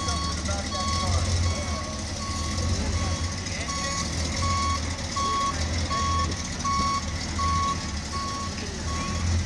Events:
[0.00, 0.20] man speaking
[0.00, 0.35] reversing beeps
[0.00, 9.45] truck
[0.43, 1.20] man speaking
[0.65, 1.09] reversing beeps
[1.40, 2.02] reversing beeps
[1.50, 1.94] man speaking
[2.17, 2.72] reversing beeps
[2.92, 3.45] reversing beeps
[3.46, 3.98] man speaking
[3.64, 4.08] reversing beeps
[4.40, 4.76] reversing beeps
[5.15, 5.50] reversing beeps
[5.87, 6.34] reversing beeps
[6.61, 7.15] reversing beeps
[7.34, 7.95] reversing beeps
[8.10, 8.57] reversing beeps
[8.85, 9.26] reversing beeps
[8.88, 9.24] human voice

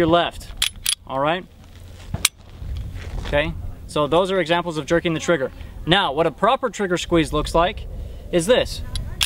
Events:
[0.00, 0.49] male speech
[0.00, 9.25] wind
[0.33, 0.87] wind noise (microphone)
[0.56, 0.67] generic impact sounds
[0.81, 0.95] generic impact sounds
[1.03, 1.45] male speech
[1.52, 2.10] surface contact
[1.56, 2.21] wind noise (microphone)
[2.07, 2.21] generic impact sounds
[2.17, 2.30] tick
[2.37, 3.25] surface contact
[2.44, 3.99] wind noise (microphone)
[2.67, 2.80] tick
[3.28, 3.54] male speech
[3.54, 3.82] human voice
[3.87, 5.50] male speech
[5.16, 5.61] woman speaking
[5.48, 5.92] wind noise (microphone)
[5.84, 6.28] male speech
[6.40, 7.75] male speech
[6.98, 9.25] wind noise (microphone)
[7.92, 8.24] breathing
[8.26, 8.71] male speech
[8.71, 9.23] woman speaking
[8.90, 9.01] tick

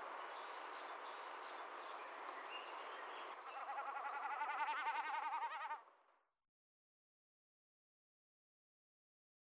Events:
[0.00, 4.32] wind
[0.20, 1.19] bird vocalization
[1.41, 1.76] bird vocalization
[2.02, 4.23] bird vocalization
[2.30, 2.36] generic impact sounds
[3.43, 5.89] animal
[4.32, 6.31] background noise

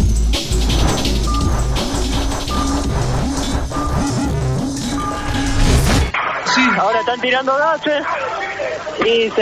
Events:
[0.00, 6.07] music
[0.56, 1.10] sound effect
[1.24, 1.69] brief tone
[1.30, 6.66] sound effect
[2.47, 2.91] brief tone
[3.69, 4.15] brief tone
[4.96, 5.33] brief tone
[6.10, 9.41] radio
[6.42, 8.02] male speech
[6.42, 9.41] music
[6.46, 6.75] brief tone
[6.46, 9.41] conversation
[6.89, 7.22] brief tone
[8.03, 8.86] human voice
[8.96, 9.07] tick

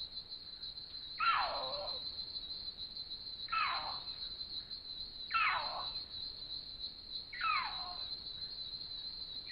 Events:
[0.00, 9.51] cricket
[1.14, 2.03] animal
[3.46, 4.08] animal
[5.26, 5.96] animal
[7.28, 8.10] animal

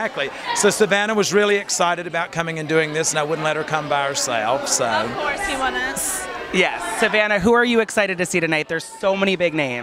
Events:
[0.00, 0.26] man speaking
[0.00, 9.82] background noise
[0.00, 9.82] conversation
[0.00, 9.82] speech noise
[0.39, 0.64] speech
[0.45, 4.78] man speaking
[4.79, 6.26] female speech
[6.48, 8.85] man speaking
[7.87, 9.82] speech
[9.03, 9.82] man speaking

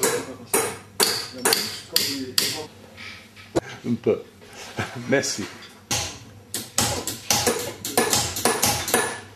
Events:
[0.00, 0.36] hammer
[0.00, 0.50] male speech
[0.00, 5.44] conversation
[0.00, 9.35] mechanisms
[0.49, 0.76] hammer
[0.98, 1.31] hammer
[1.30, 1.61] male speech
[1.44, 1.77] hammer
[1.89, 2.66] male speech
[1.92, 2.19] hammer
[2.35, 2.64] hammer
[2.91, 3.22] gears
[3.32, 3.48] gears
[3.60, 3.83] gasp
[3.81, 4.15] male speech
[4.37, 5.67] surface contact
[4.74, 5.44] male speech
[5.55, 5.65] generic impact sounds
[5.88, 6.21] hammer
[6.53, 6.62] hammer
[6.75, 7.12] hammer
[7.29, 7.69] hammer
[7.85, 9.05] hammer

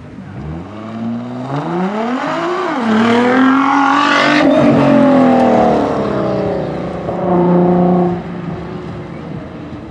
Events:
[0.00, 6.71] revving
[0.00, 9.90] car
[0.00, 9.90] wind
[7.00, 8.29] revving

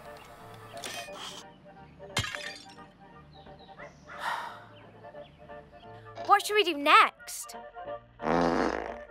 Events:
[0.00, 9.10] music
[0.01, 0.28] generic impact sounds
[0.15, 0.38] bird vocalization
[0.52, 0.59] tick
[0.66, 0.80] bird vocalization
[0.80, 1.43] sound effect
[1.50, 2.17] bird vocalization
[2.17, 2.79] shatter
[3.29, 3.83] bird vocalization
[3.74, 3.92] bark
[4.06, 4.25] bark
[4.16, 4.62] sigh
[4.73, 4.94] bird vocalization
[5.16, 5.45] bird vocalization
[5.74, 6.00] bird vocalization
[6.16, 6.37] generic impact sounds
[6.27, 7.15] kid speaking
[8.19, 9.07] fart

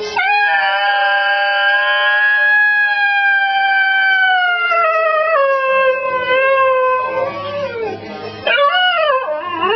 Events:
[0.00, 0.51] music
[0.00, 8.06] howl
[5.91, 6.42] music
[6.96, 8.79] music
[8.45, 9.75] howl
[9.24, 9.75] music

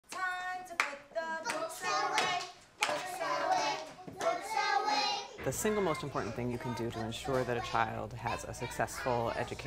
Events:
[0.03, 0.22] clapping
[0.03, 2.52] female singing
[0.74, 0.97] clapping
[1.40, 1.63] clapping
[1.44, 2.44] child singing
[2.10, 2.47] clapping
[2.75, 3.78] child singing
[2.76, 2.99] clapping
[2.79, 3.81] female singing
[4.14, 5.37] child singing
[4.15, 5.37] female singing
[5.35, 9.65] mechanisms
[5.44, 9.65] speech
[5.50, 8.04] child singing
[8.22, 9.65] child singing

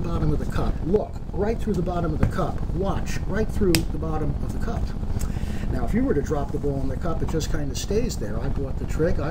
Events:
[0.00, 1.16] man speaking
[0.00, 9.30] mechanisms
[1.30, 4.27] man speaking
[1.69, 1.79] generic impact sounds
[2.17, 2.37] generic impact sounds
[3.71, 3.85] generic impact sounds
[4.41, 4.89] man speaking
[5.08, 5.66] breathing
[5.66, 9.30] man speaking
[7.23, 7.33] generic impact sounds

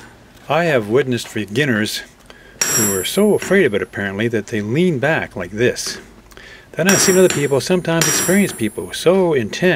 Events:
[0.00, 9.75] mechanisms
[0.44, 2.10] male speech
[2.23, 2.30] tick
[2.33, 2.57] breathing
[2.60, 3.42] hammer
[2.75, 6.09] male speech
[6.28, 6.36] tick
[6.36, 6.65] breathing
[6.73, 9.75] male speech
[6.88, 7.79] hammer
[7.27, 7.33] tick
[7.98, 8.01] tick
[8.01, 8.77] hammer
[8.44, 8.51] tick

